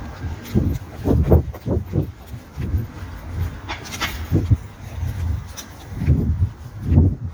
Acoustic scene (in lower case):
residential area